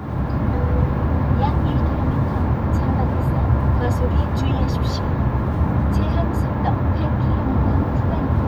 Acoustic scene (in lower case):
car